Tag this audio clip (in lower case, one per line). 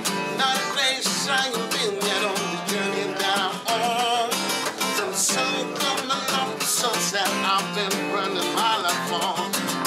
music